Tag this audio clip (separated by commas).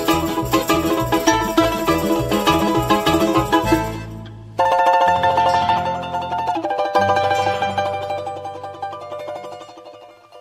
Music